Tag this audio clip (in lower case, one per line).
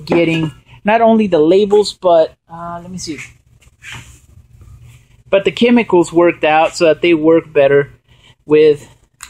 speech
spray